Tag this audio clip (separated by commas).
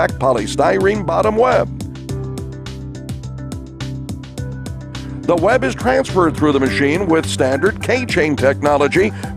Speech, Music